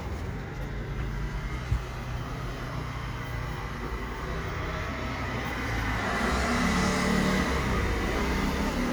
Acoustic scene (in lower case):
residential area